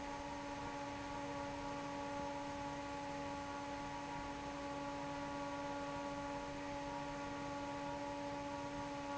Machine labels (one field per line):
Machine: fan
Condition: normal